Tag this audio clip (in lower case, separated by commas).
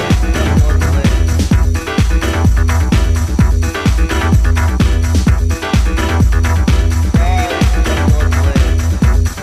music, speech, disco